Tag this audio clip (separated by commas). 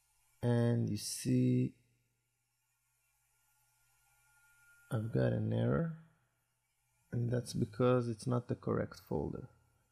Speech, inside a small room